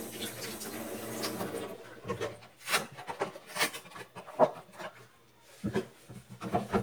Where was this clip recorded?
in a kitchen